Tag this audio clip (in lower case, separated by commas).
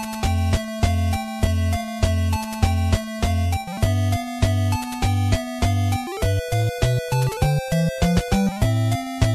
music